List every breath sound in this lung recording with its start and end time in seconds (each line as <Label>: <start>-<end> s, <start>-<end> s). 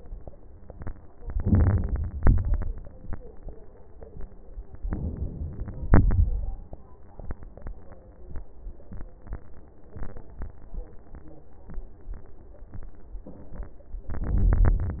Inhalation: 1.15-2.15 s, 4.86-5.88 s, 14.12-15.00 s
Exhalation: 2.18-2.78 s, 5.89-6.63 s
Crackles: 1.26-2.05 s, 2.19-2.70 s, 5.90-6.62 s, 14.25-15.00 s